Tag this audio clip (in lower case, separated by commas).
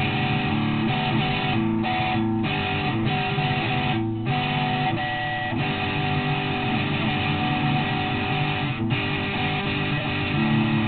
guitar, musical instrument, strum, playing bass guitar, music, bass guitar, electric guitar, plucked string instrument